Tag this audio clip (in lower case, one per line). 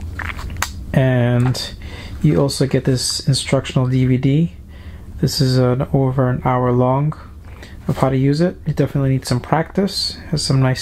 speech